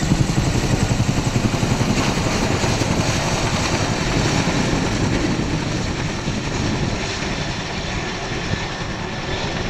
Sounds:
helicopter
vehicle

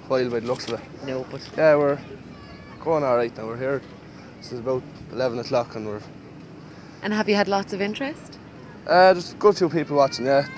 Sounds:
speech

